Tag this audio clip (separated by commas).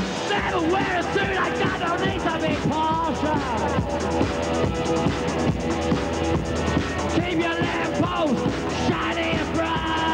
Music